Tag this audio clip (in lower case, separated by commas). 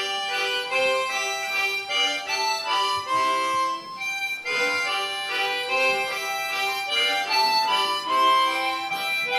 harmonica, music